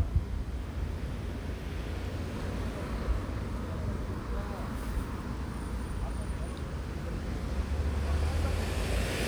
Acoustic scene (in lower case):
street